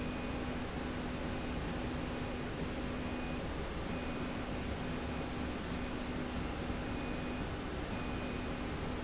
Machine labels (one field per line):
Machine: slide rail